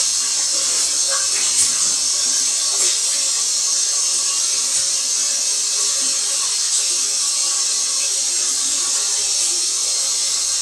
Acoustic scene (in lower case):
restroom